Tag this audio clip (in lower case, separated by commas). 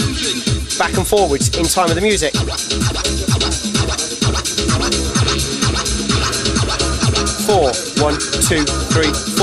scratching (performance technique), music, speech